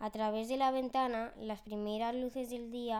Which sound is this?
speech